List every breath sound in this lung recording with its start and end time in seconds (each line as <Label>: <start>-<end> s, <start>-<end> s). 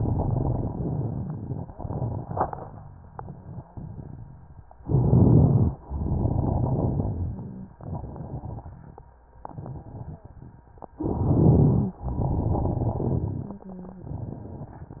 Inhalation: 4.82-5.77 s, 10.98-12.01 s
Exhalation: 5.88-7.74 s, 12.07-13.70 s
Crackles: 0.00-4.55 s, 4.82-5.77 s, 5.88-9.13 s, 9.49-10.93 s, 10.98-12.01 s, 12.07-15.00 s